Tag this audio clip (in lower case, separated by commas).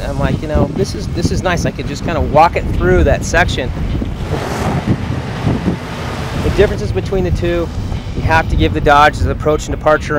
vehicle, car, speech